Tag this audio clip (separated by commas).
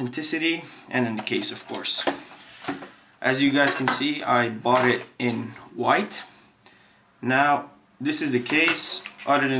Speech, inside a small room